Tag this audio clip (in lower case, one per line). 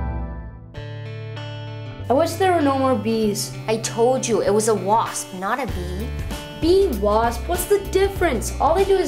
kid speaking
music
speech